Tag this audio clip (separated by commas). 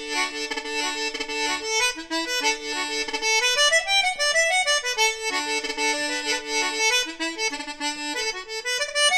playing accordion, Accordion, Music, Wind instrument, Musical instrument